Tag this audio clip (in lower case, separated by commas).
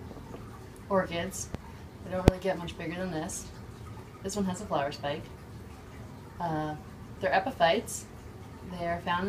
speech, inside a small room